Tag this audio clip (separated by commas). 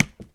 Tap